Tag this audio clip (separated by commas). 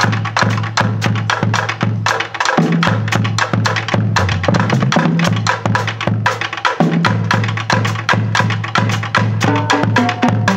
Percussion, Bass drum, Drum, Music, Musical instrument, Snare drum